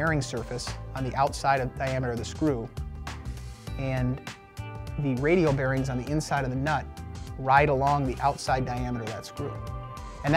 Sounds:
speech, music

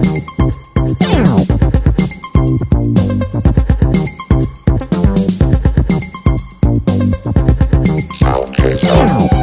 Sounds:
music

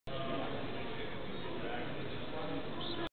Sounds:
speech

